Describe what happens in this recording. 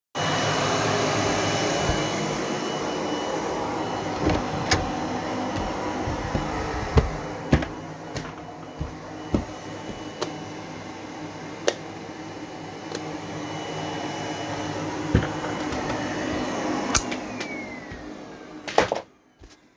I vacuumed the bedroom, left the cleaner running, walked to the other room to unplug it, by doing so opened a door and switched on the light.